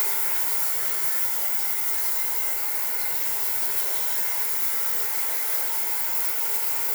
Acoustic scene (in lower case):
restroom